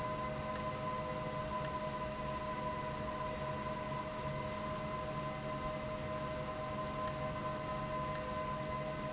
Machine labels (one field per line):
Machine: valve